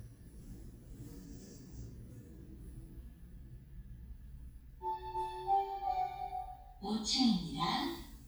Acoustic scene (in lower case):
elevator